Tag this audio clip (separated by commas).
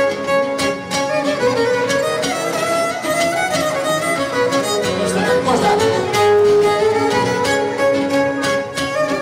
String section